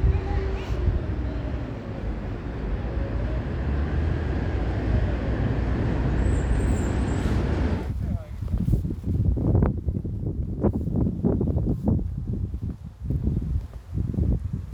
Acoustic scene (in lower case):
residential area